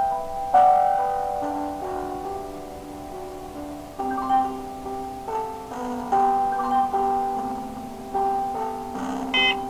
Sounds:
Music, inside a small room

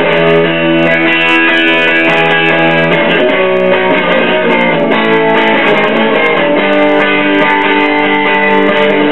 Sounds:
Plucked string instrument, Musical instrument, Electric guitar, Guitar, Music

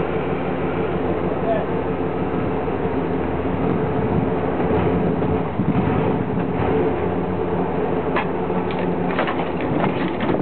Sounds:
Vehicle, Truck

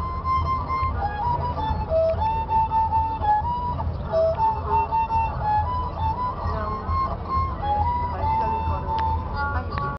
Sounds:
Speech, Musical instrument, Music, fiddle

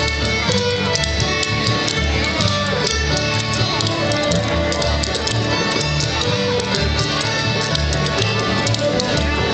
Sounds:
Music

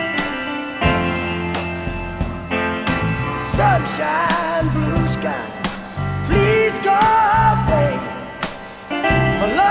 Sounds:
Music

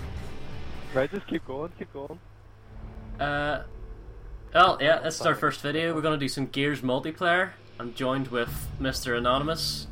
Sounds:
Speech

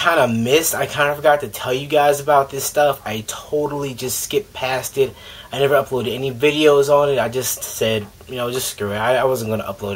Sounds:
Speech

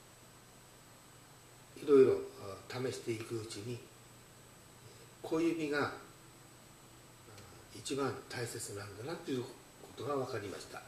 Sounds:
Speech

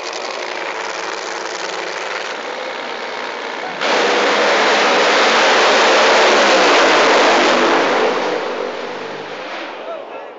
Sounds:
Car, Car passing by, Vehicle, Motor vehicle (road)

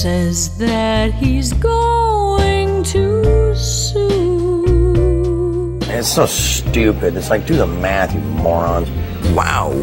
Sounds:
Music, Tender music, Speech

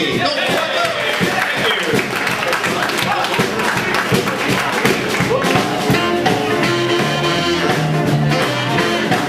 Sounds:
Speech, Music

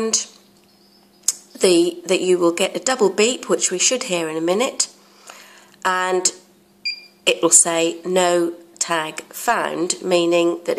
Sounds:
inside a small room, Speech

